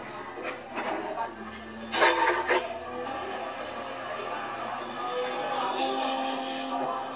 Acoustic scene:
cafe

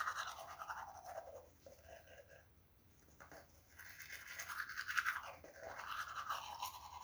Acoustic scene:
restroom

